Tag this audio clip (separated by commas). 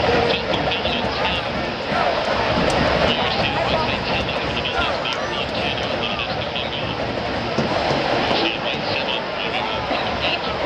Speech